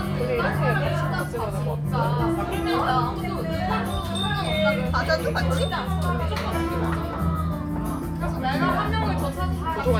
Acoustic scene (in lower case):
crowded indoor space